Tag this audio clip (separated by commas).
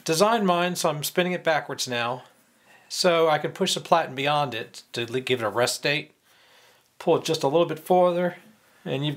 Speech